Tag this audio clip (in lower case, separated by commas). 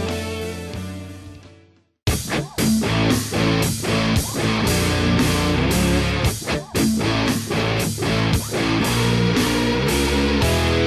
musical instrument, guitar, music, strum, electric guitar, plucked string instrument